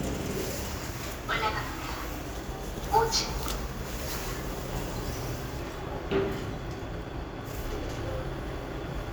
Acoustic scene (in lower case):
elevator